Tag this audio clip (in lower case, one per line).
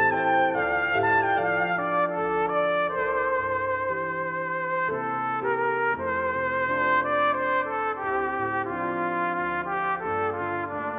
playing cornet